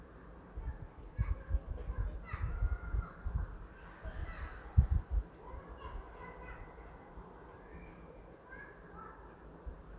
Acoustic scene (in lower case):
residential area